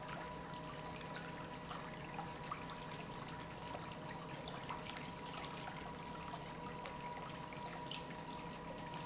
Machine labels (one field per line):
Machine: pump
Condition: normal